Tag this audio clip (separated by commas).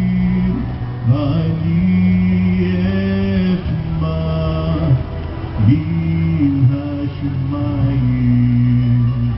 Music, Male singing